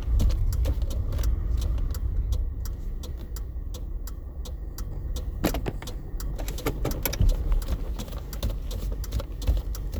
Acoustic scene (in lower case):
car